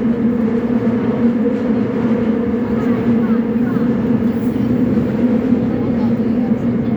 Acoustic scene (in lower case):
subway train